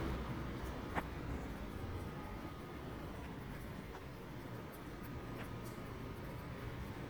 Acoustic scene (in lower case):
residential area